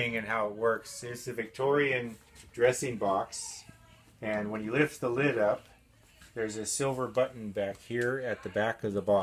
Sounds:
opening or closing drawers

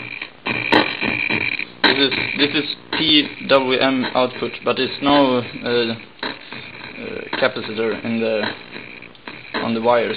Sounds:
Speech, Music

